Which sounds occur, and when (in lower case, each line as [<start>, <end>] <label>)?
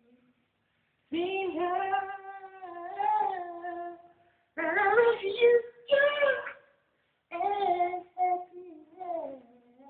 [0.00, 0.36] male singing
[0.00, 9.85] mechanisms
[1.10, 4.12] male singing
[1.98, 2.10] tick
[2.97, 3.18] generic impact sounds
[4.55, 6.58] male singing
[7.30, 9.85] male singing